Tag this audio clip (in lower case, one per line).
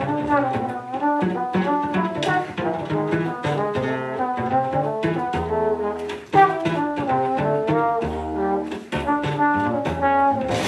brass instrument
musical instrument
trombone
music
double bass